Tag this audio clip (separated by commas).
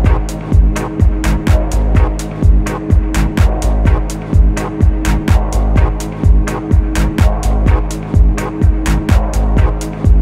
Soundtrack music, Music